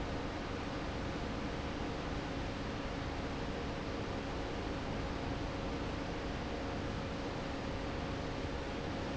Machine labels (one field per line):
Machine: fan